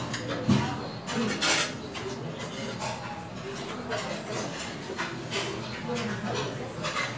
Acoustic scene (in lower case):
restaurant